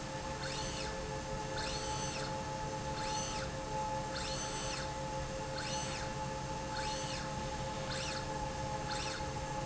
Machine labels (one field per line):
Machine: slide rail